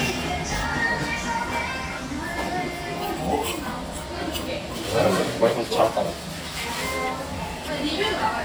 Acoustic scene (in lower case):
restaurant